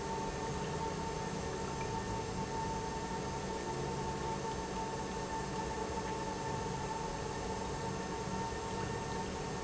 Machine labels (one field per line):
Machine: pump